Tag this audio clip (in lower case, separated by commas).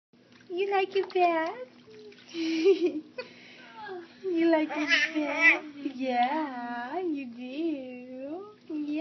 babbling, people babbling, speech